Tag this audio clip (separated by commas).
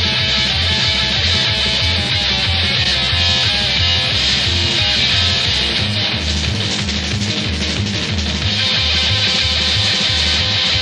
Music